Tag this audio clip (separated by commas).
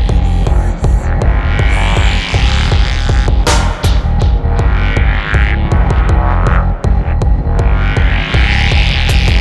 Reggae, Music